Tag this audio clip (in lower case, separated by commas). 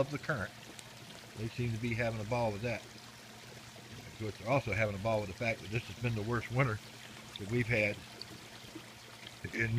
speech, water